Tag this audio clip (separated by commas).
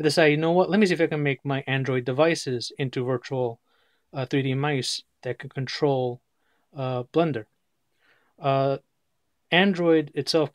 Speech